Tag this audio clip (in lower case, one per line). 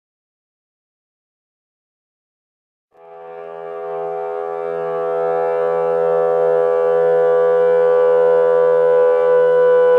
plucked string instrument
music
guitar
silence
inside a small room
musical instrument